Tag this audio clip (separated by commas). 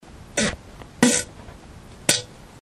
Fart